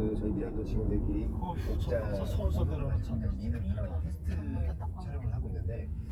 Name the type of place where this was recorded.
car